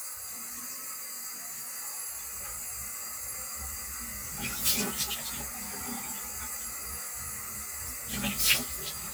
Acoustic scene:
restroom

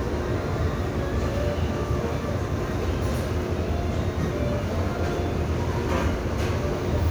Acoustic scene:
restaurant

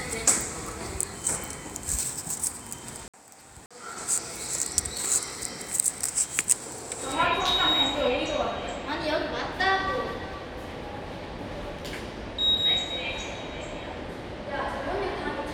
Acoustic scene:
subway station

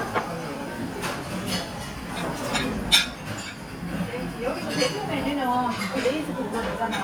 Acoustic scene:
restaurant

